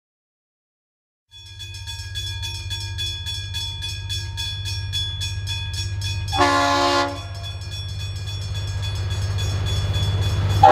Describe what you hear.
A train crossing bell is ringing, a train horn sounds, and a large engine is running and approaches